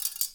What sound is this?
plastic object falling